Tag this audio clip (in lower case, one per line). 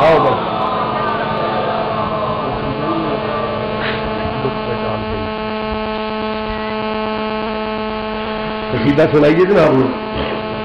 hum
mains hum